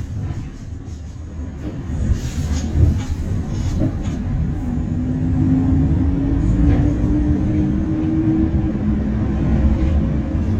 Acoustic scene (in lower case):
bus